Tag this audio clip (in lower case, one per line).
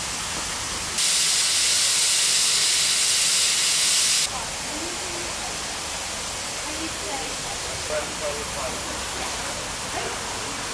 speech